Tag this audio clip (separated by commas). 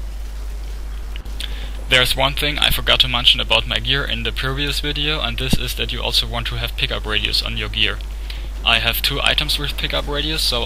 Speech